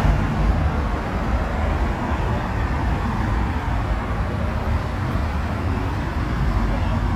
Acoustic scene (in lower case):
street